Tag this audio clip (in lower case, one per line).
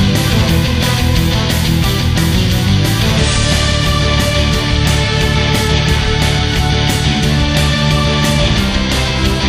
music